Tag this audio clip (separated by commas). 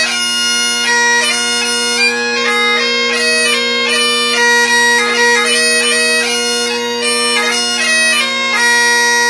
playing bagpipes